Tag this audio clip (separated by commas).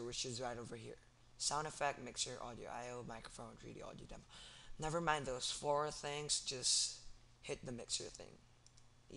Speech